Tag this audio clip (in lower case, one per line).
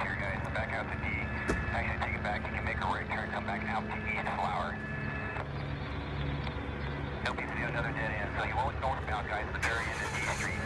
speech
vehicle